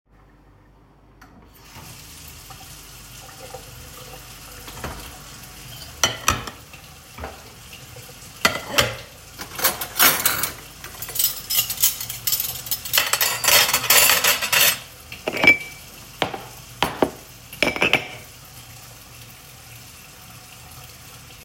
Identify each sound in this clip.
running water, cutlery and dishes